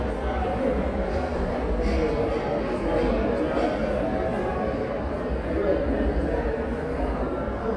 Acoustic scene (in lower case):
crowded indoor space